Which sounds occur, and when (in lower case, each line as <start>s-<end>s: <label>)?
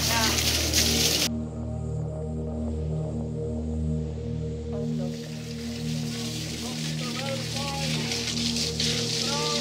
0.0s-0.3s: male speech
0.0s-9.6s: gush
0.0s-9.6s: music
6.6s-8.0s: male speech
9.1s-9.6s: male speech